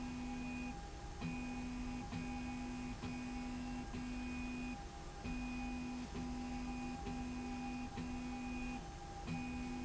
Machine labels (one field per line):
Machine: slide rail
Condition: normal